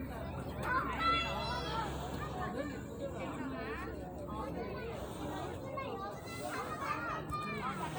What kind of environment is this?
park